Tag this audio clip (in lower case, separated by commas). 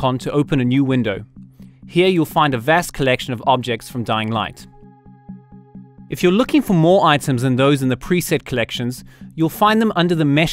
music, speech